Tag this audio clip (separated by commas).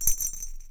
Bell